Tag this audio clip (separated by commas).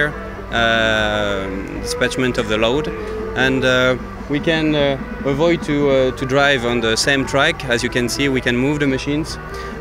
Speech, Music